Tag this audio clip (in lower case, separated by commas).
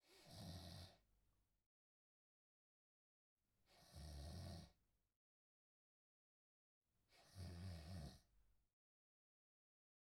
respiratory sounds, breathing